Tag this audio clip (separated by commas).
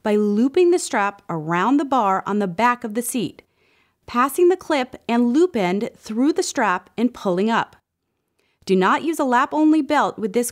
Speech